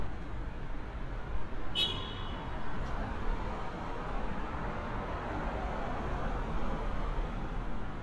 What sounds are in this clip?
car horn